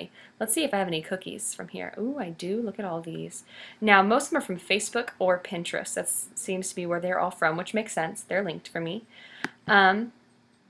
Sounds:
speech

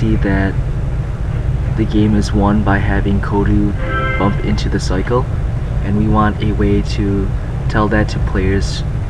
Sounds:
speech, music

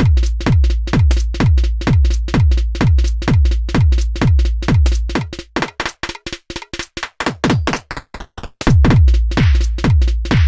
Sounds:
drum machine, drum, music, bass drum, musical instrument

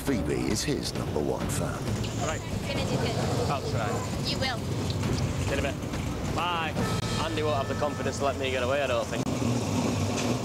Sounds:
vehicle, speech, music

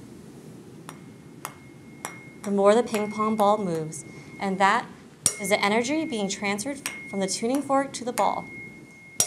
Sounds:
playing tuning fork

